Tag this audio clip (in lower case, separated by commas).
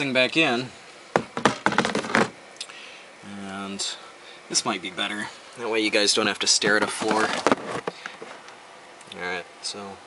inside a small room, speech